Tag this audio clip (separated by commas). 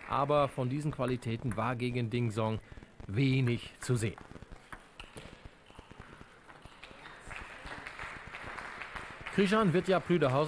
Speech